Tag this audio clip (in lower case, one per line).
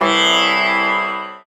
music
plucked string instrument
musical instrument